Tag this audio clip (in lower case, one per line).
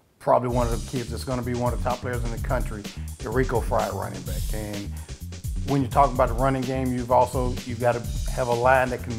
speech
music